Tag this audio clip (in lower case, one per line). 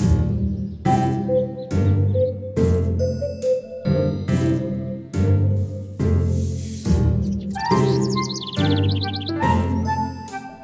background music
music
animal